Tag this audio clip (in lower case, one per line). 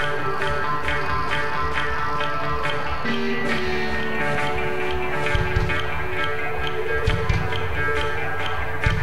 music
country